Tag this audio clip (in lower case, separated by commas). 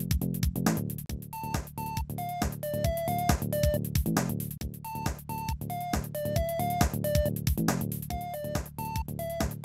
music